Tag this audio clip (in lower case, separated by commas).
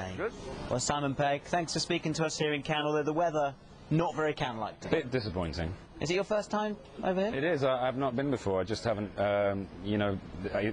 speech